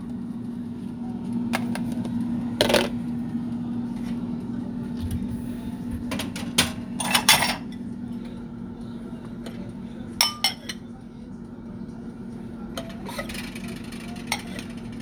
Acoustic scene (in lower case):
kitchen